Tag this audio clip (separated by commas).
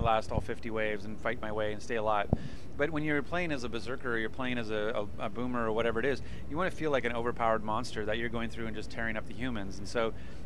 Speech